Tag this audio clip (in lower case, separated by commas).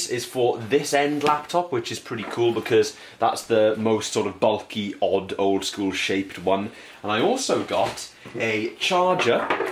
inside a small room, speech